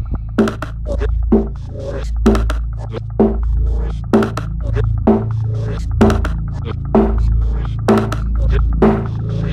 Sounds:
music, electronic music, electronic dance music

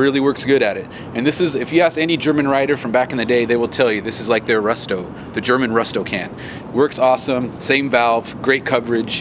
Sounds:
speech

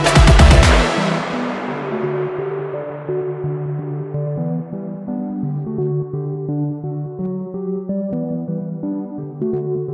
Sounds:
music

